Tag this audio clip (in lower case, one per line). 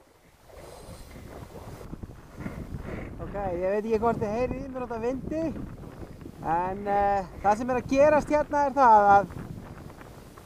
vehicle